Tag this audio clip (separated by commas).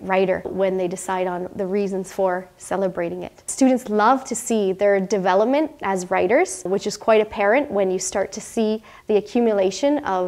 Speech